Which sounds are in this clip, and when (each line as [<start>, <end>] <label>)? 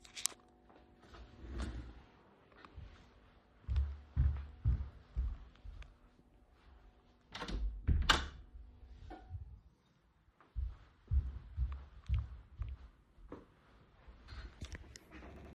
[3.61, 5.90] footsteps
[7.22, 8.43] door
[10.48, 13.66] footsteps